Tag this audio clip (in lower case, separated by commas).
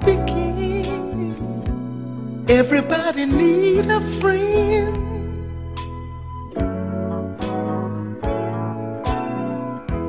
soul music, singing